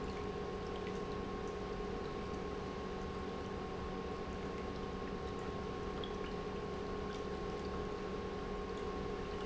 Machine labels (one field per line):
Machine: pump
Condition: normal